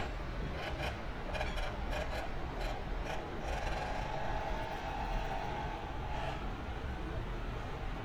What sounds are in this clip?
small-sounding engine